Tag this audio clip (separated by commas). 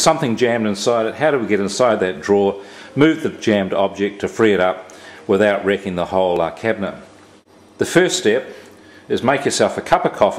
Speech